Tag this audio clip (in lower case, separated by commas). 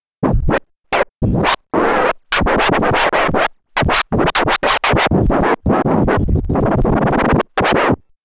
music, scratching (performance technique), musical instrument